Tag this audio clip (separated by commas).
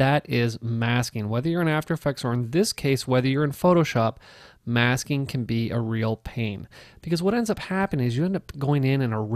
Speech